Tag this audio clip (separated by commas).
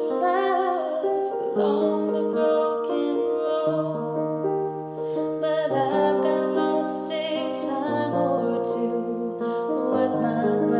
Music, Female singing